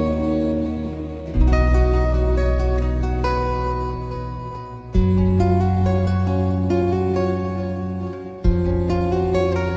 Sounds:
Music

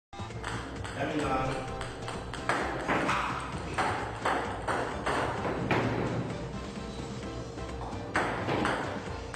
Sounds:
playing table tennis

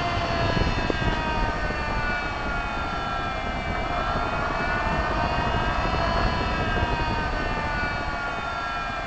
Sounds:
Engine, Accelerating, Medium engine (mid frequency)

